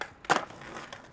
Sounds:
skateboard, vehicle

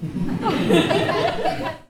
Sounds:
human voice, laughter

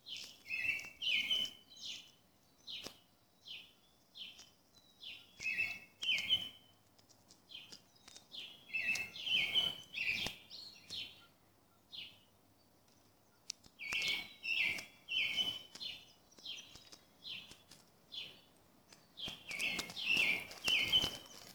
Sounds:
wild animals, bird call, bird, animal

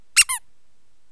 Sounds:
squeak

